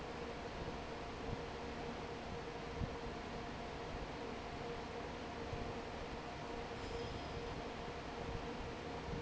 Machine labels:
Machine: fan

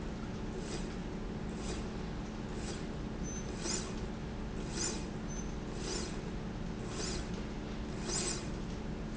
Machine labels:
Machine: slide rail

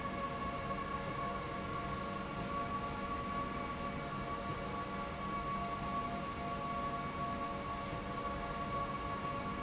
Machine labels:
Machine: slide rail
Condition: normal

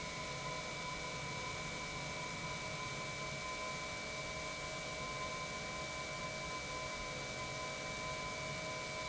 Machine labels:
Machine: pump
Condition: normal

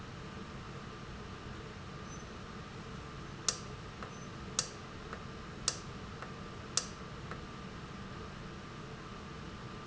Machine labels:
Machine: valve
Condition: normal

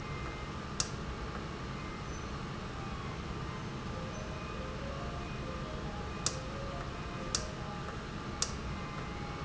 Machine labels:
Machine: valve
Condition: normal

